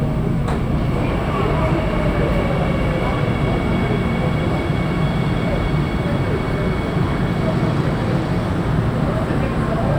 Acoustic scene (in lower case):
subway train